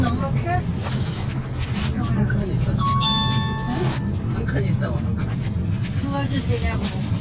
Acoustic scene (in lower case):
car